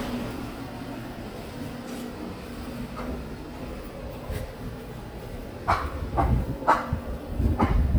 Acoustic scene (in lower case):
residential area